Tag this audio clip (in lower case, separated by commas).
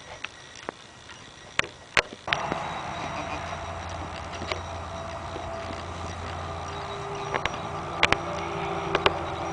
bleat, sheep